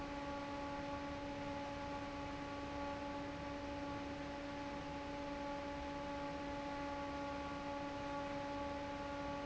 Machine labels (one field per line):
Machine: fan